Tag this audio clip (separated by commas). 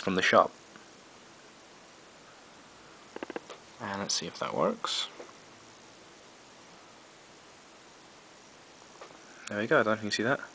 Speech